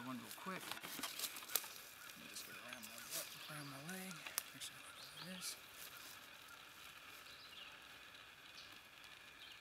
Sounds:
Speech, outside, rural or natural

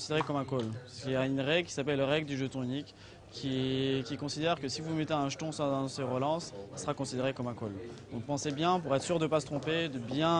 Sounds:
Speech

